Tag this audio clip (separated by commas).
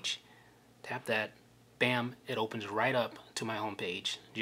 Speech